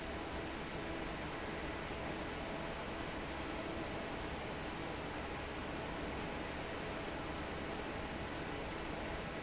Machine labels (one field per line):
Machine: fan